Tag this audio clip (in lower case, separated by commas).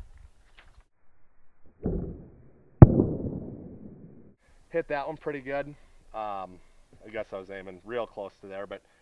speech, arrow